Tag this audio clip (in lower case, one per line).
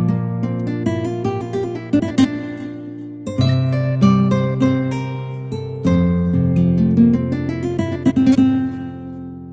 guitar
musical instrument
plucked string instrument
music